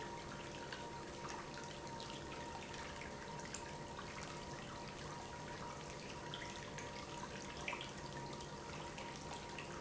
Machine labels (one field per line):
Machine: pump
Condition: abnormal